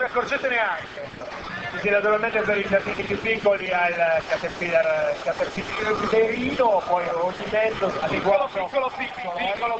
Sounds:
Speech

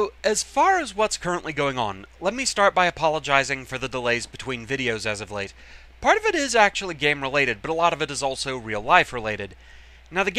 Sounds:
Speech

